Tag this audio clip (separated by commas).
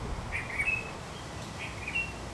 Animal, Bird, Wild animals